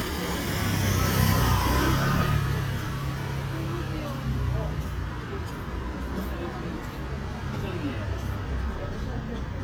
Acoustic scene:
residential area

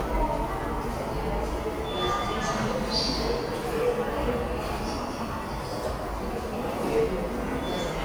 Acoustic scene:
subway station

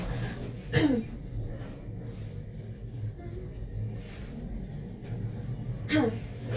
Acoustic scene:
elevator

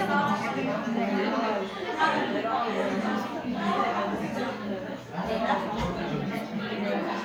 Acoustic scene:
crowded indoor space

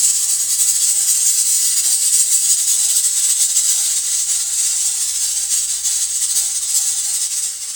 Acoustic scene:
kitchen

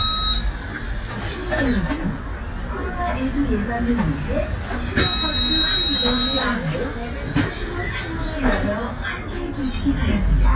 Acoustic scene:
bus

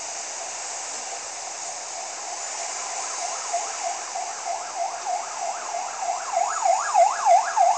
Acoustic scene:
street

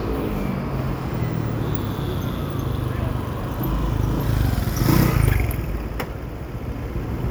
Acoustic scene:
residential area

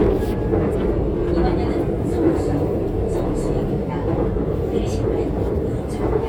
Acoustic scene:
subway train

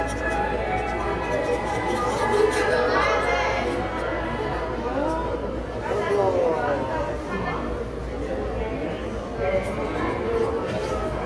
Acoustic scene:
subway station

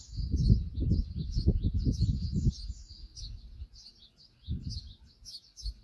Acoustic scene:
park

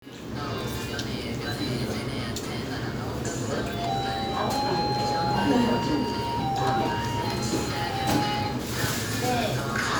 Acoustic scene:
restaurant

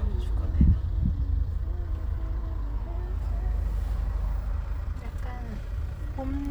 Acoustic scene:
car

